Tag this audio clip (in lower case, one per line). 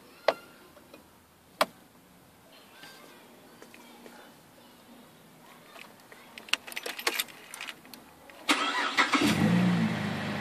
car
vehicle
speech